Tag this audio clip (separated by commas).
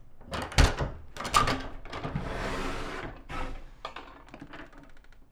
Domestic sounds, Sliding door, Door